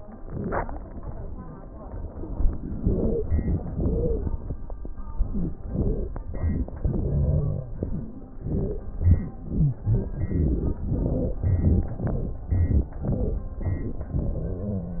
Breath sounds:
Wheeze: 2.79-3.25 s, 3.81-4.28 s, 5.24-5.53 s, 5.71-6.00 s, 8.46-8.78 s

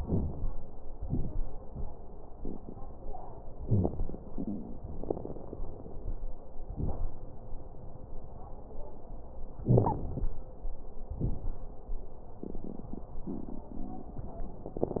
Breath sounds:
Wheeze: 3.62-3.88 s, 9.68-9.94 s

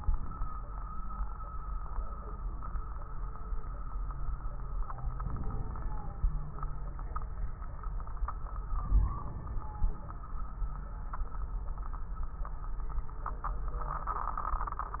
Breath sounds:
Inhalation: 5.18-6.31 s, 8.80-10.01 s

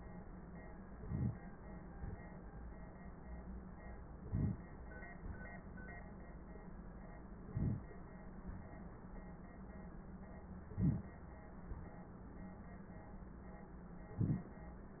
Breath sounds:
Inhalation: 1.01-1.39 s, 4.23-4.61 s, 7.51-7.89 s, 10.74-11.12 s, 14.15-14.54 s

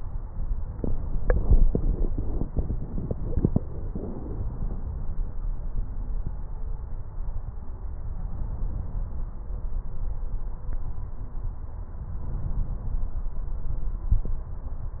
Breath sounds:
Inhalation: 12.18-13.31 s

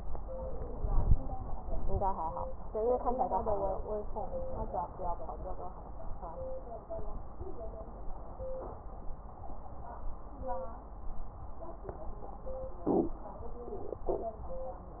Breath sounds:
No breath sounds were labelled in this clip.

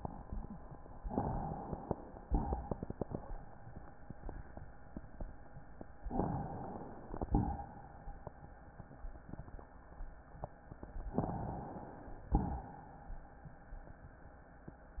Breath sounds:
Inhalation: 1.04-2.21 s, 6.08-7.11 s, 11.15-12.31 s
Exhalation: 2.27-3.46 s, 7.10-7.89 s, 12.33-13.20 s
Crackles: 2.27-3.46 s

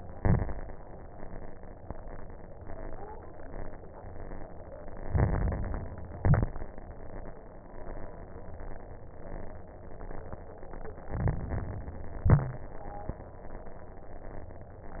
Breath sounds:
Inhalation: 5.02-6.02 s, 11.10-12.10 s
Exhalation: 0.00-0.62 s, 6.14-6.61 s, 12.20-12.67 s
Crackles: 0.00-0.62 s, 5.02-6.02 s, 6.14-6.61 s, 11.10-12.10 s, 12.20-12.67 s

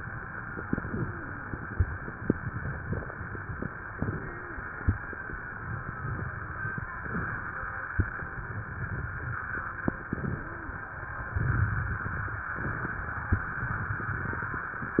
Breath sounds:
Wheeze: 0.93-1.46 s, 4.04-4.57 s, 10.28-10.82 s

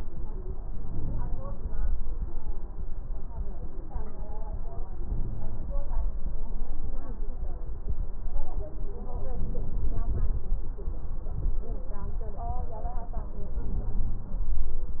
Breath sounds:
Inhalation: 0.59-1.61 s, 4.94-5.78 s, 9.38-10.43 s, 13.53-14.56 s

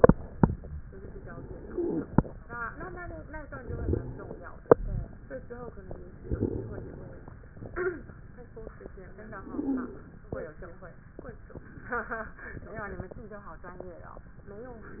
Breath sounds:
Inhalation: 0.88-2.32 s, 3.60-4.60 s, 6.22-7.38 s, 9.32-10.20 s
Stridor: 1.60-2.24 s, 3.58-4.37 s, 9.44-10.00 s
Crackles: 6.22-6.92 s

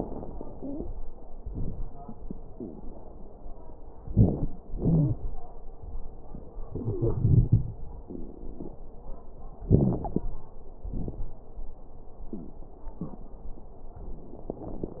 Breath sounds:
Inhalation: 4.00-4.53 s, 9.69-10.25 s
Exhalation: 4.74-5.19 s, 10.83-11.33 s
Wheeze: 0.52-0.91 s, 4.78-5.17 s, 9.69-10.03 s
Crackles: 4.00-4.53 s, 10.83-11.33 s

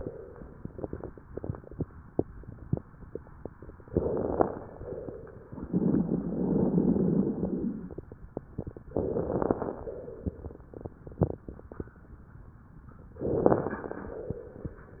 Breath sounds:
Inhalation: 3.87-4.65 s, 8.99-9.77 s, 13.22-14.00 s
Exhalation: 4.69-5.50 s, 9.83-10.65 s, 14.02-14.84 s
Crackles: 3.87-4.65 s, 8.99-9.77 s, 13.22-14.00 s

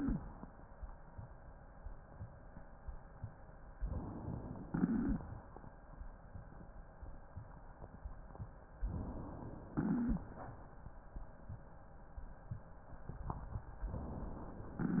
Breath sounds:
Inhalation: 3.76-4.63 s, 8.86-9.73 s, 13.93-14.80 s
Exhalation: 4.67-5.22 s, 9.75-10.30 s
Crackles: 4.67-5.22 s, 9.75-10.30 s

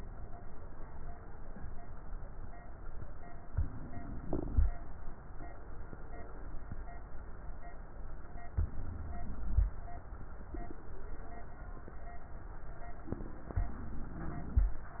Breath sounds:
Inhalation: 3.48-4.65 s, 8.53-9.71 s, 13.57-14.74 s

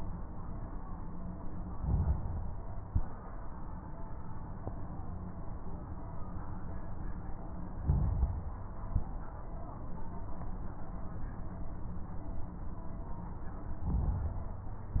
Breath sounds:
Inhalation: 1.69-2.64 s, 7.75-8.70 s, 13.81-14.76 s
Exhalation: 2.73-3.23 s, 8.78-9.27 s
Crackles: 1.69-2.64 s, 2.73-3.23 s, 7.75-8.70 s, 8.78-9.27 s, 13.81-14.76 s

